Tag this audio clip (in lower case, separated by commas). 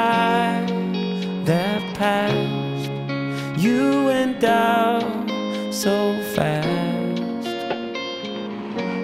music